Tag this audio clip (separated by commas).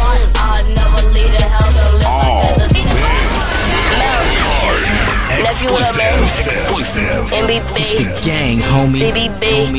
Speech, Music